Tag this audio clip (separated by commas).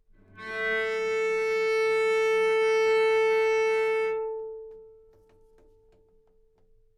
Music, Musical instrument, Bowed string instrument